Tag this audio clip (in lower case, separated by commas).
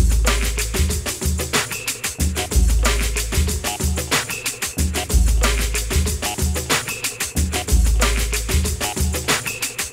music